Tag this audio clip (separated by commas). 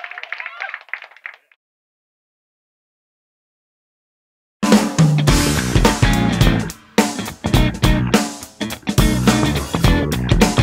Music, Pop music